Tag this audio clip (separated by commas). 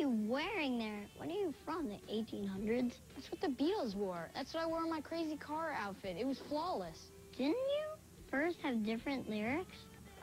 Music